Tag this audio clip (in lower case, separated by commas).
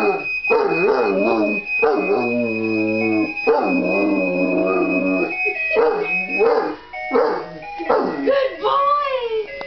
buzzer, speech, music